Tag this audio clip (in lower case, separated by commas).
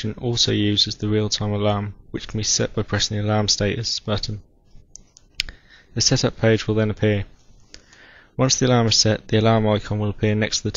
speech